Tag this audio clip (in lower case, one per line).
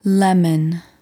woman speaking
speech
human voice